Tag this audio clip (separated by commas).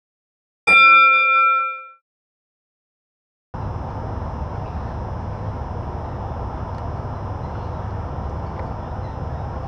Bird